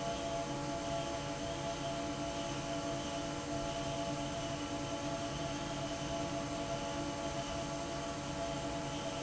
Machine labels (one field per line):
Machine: fan